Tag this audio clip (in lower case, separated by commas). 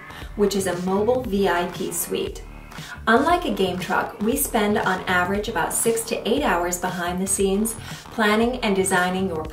speech, music